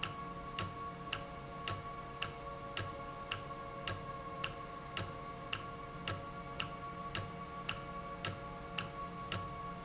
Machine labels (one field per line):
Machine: valve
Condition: normal